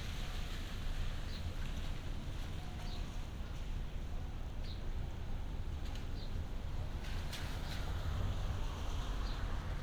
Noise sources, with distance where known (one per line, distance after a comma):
medium-sounding engine, near